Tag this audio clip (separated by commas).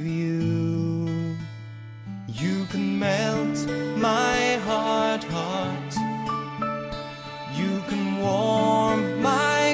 Music